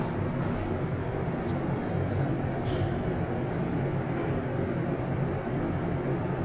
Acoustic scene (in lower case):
elevator